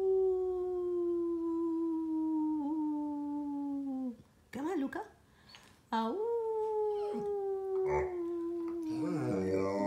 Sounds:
dog howling

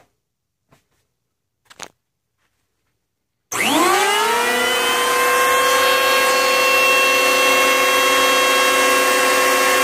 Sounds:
planing timber

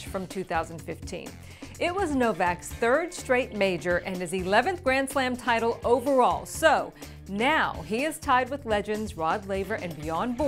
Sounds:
Music, Speech

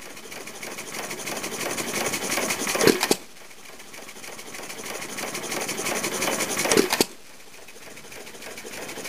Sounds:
Engine, Idling, Medium engine (mid frequency)

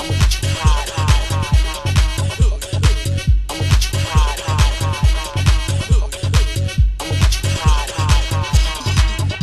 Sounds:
House music, Electronic music, Music

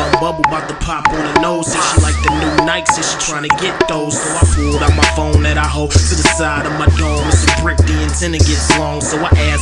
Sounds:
Music

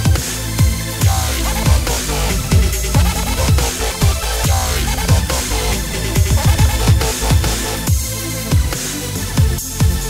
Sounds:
Music, Dubstep, Trance music, Techno

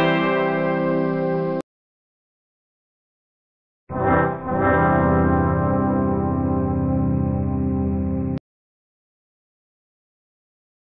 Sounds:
Music

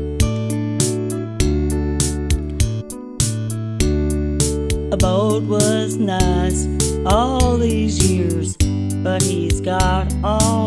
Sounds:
Music

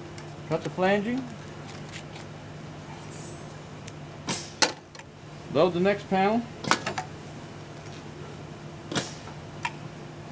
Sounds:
Speech

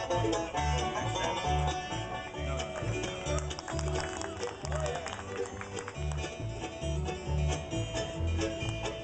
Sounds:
Music, Musical instrument, Banjo

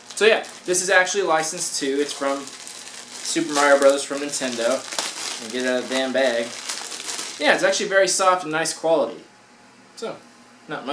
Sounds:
Speech

